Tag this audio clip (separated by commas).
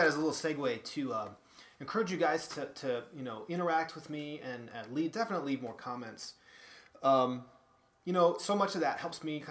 Speech